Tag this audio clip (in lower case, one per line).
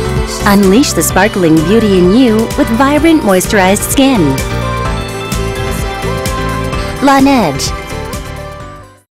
speech
music